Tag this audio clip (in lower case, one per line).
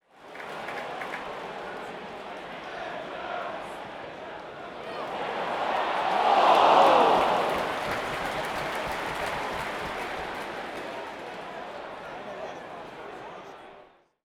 cheering
human group actions